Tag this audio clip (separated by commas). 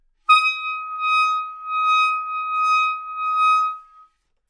Musical instrument, woodwind instrument, Music